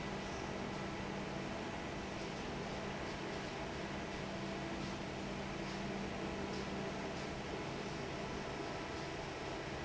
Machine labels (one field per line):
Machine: fan